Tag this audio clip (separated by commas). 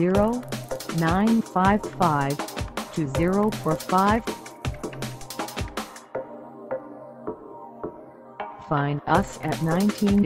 Speech, Music